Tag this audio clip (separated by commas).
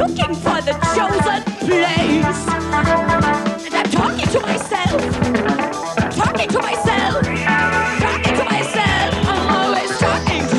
Singing, Music, Pop music